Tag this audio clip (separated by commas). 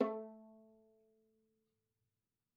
Musical instrument, Bowed string instrument, Music